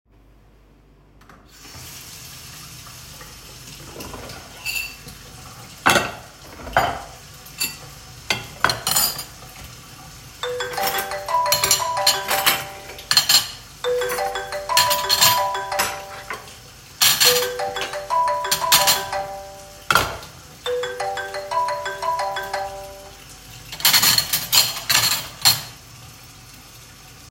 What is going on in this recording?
I was washing the dishes, when the phone suddenly started to ring.